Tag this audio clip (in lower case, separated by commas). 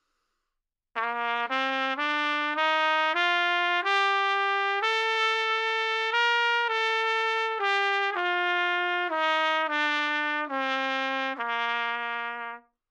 trumpet, music, brass instrument, musical instrument